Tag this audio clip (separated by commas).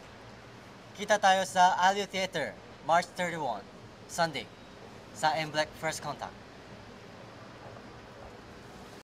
Speech